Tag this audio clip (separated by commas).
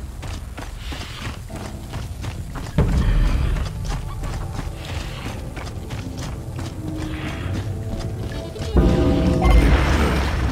Music